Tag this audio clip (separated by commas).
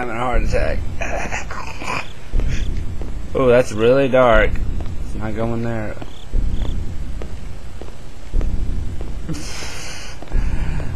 Speech